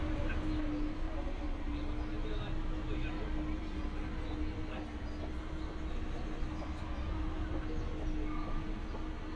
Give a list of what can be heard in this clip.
engine of unclear size, person or small group talking